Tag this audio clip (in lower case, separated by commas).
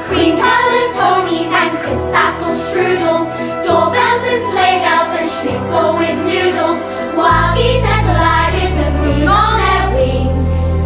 sound effect, music